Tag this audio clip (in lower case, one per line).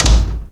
slam
door
domestic sounds